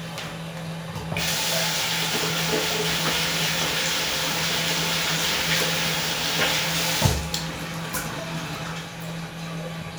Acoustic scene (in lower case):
restroom